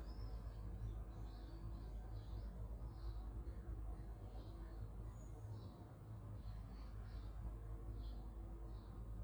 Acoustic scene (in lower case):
park